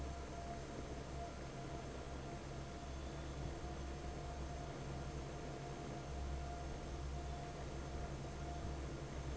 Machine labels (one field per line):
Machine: fan